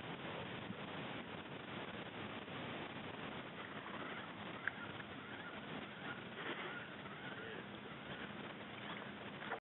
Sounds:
Speech

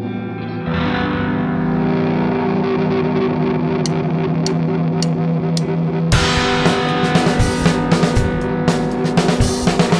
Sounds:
Radio, Music

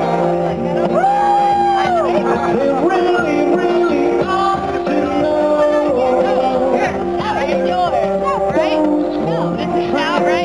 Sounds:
Whoop, Music, Speech

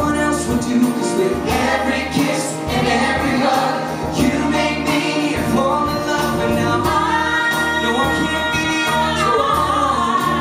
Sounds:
Singing, Music, inside a large room or hall

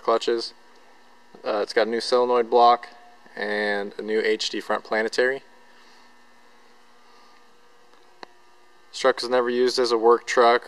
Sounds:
Speech

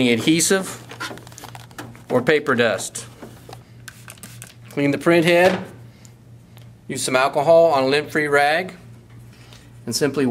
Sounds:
Speech

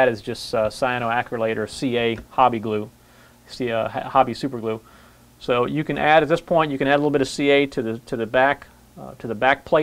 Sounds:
Speech

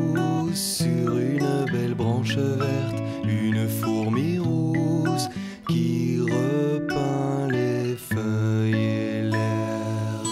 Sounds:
Music

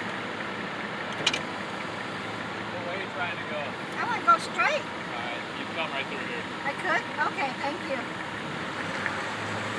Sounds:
Speech, Vehicle

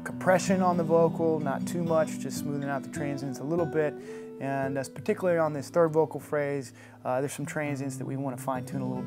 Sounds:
Speech, Music

